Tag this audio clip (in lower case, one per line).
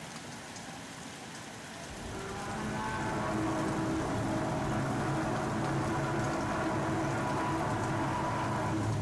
rain